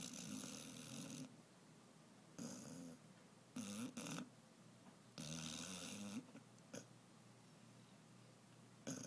Someone snores nearby